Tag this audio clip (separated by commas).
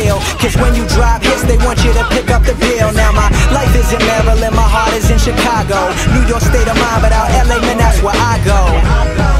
Music